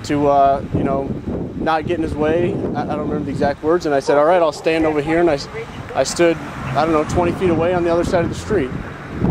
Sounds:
wind, wind noise (microphone)

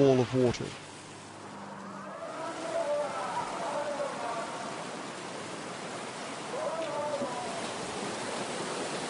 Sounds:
outside, rural or natural, speech

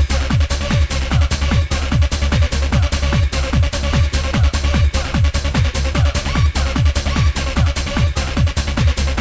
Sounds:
music, sampler

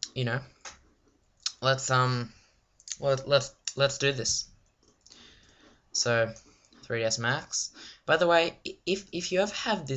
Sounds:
speech

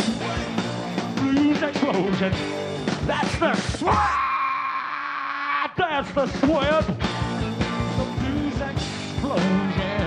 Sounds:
blues, music, explosion

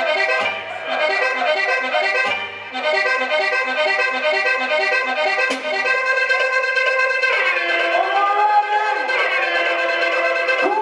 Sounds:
speech, music

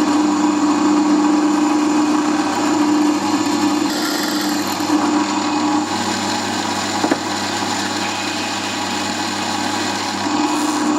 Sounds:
tools, inside a small room

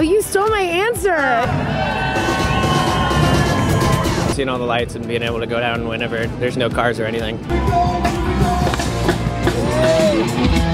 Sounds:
music, outside, urban or man-made, speech

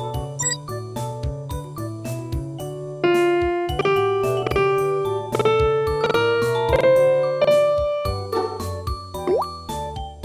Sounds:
music, telephone

